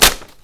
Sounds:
Tearing

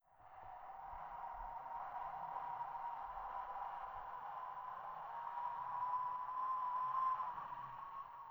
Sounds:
Wind

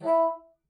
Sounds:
Wind instrument, Music, Musical instrument

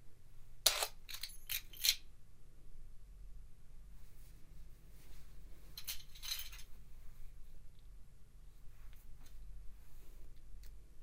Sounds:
Keys jangling, home sounds

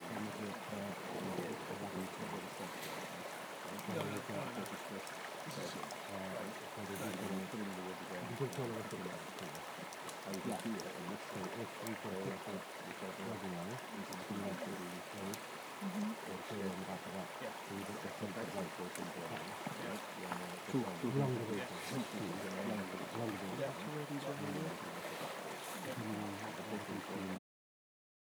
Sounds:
Stream, Water, Human group actions, Chatter

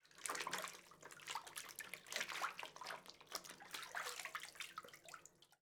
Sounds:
Domestic sounds, Water, Bathtub (filling or washing)

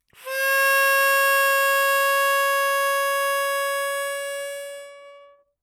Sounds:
Music, Harmonica, Musical instrument

